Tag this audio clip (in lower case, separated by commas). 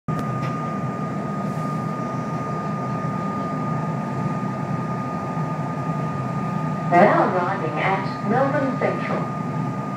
train wagon, metro, rail transport, train